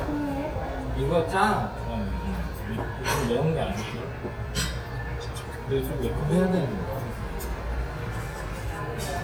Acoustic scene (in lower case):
restaurant